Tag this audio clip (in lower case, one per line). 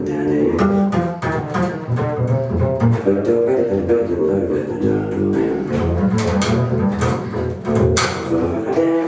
music
musical instrument
bowed string instrument
double bass